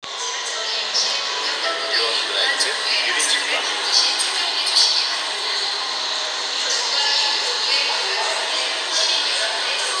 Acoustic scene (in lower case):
subway station